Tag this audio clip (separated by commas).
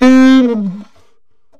Musical instrument, Music, Wind instrument